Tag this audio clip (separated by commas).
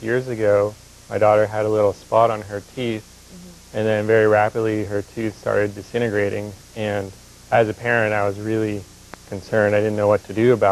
Speech